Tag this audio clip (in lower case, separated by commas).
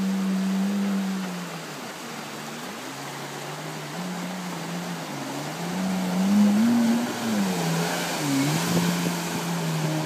boat, sailing ship, ship, speedboat, vehicle